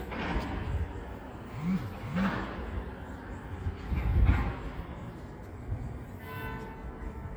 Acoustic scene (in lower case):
residential area